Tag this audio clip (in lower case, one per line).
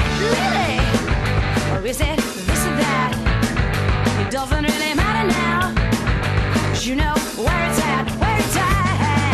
music